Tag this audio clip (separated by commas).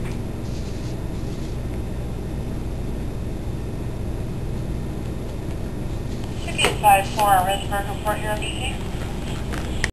Speech